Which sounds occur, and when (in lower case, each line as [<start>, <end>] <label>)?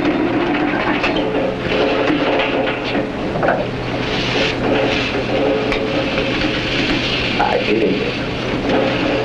[0.00, 9.24] mechanisms
[0.97, 1.27] generic impact sounds
[2.10, 2.87] generic impact sounds
[2.89, 2.99] surface contact
[3.44, 3.64] generic impact sounds
[5.76, 5.89] generic impact sounds
[7.43, 8.35] male speech